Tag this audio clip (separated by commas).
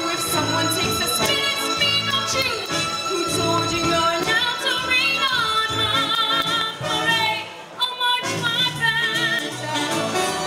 Music